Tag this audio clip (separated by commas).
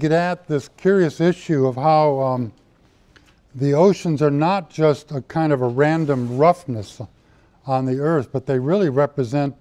Speech